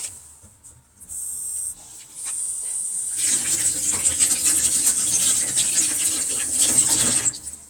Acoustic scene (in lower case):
kitchen